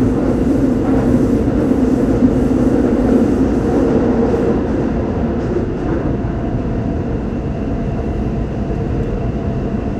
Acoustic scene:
subway train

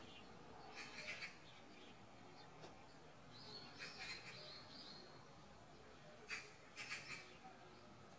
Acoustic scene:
park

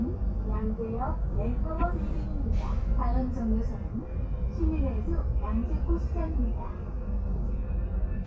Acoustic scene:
bus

